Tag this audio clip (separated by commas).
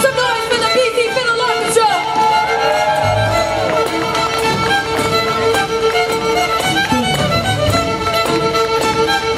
Musical instrument, Violin, Speech, Music, Orchestra